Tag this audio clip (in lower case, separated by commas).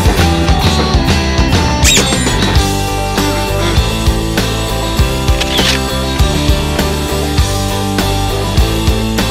music, yip